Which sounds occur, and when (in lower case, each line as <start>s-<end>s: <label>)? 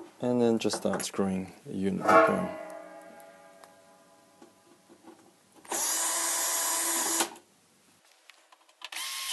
0.0s-9.3s: background noise
1.6s-2.5s: male speech
8.8s-8.9s: generic impact sounds
8.9s-9.3s: drill